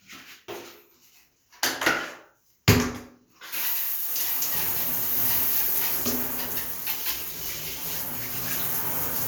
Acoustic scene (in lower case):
restroom